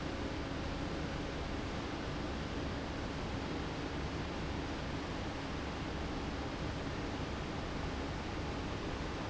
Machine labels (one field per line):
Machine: fan